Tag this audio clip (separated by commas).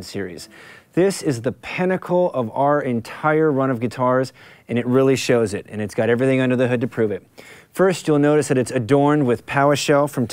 Speech